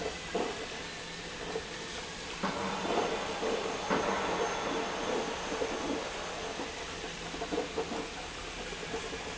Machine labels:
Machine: pump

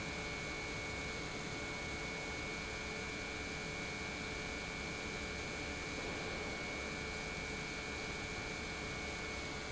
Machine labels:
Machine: pump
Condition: normal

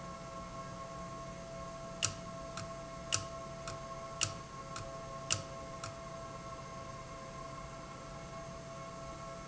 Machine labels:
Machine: valve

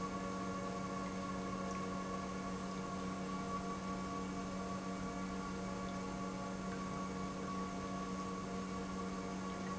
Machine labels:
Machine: pump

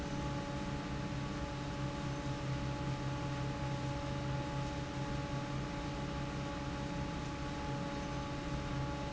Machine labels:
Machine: fan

